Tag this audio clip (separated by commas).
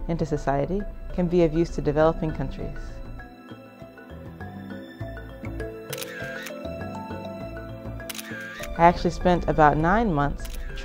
Music, Speech